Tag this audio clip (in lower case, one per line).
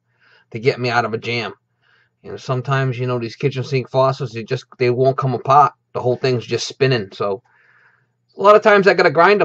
speech